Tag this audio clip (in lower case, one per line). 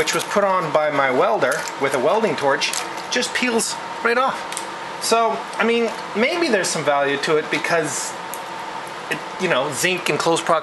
speech